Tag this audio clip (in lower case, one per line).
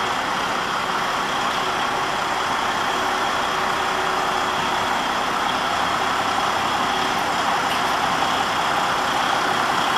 vehicle
truck